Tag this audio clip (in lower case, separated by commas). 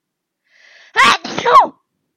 respiratory sounds, sneeze, human voice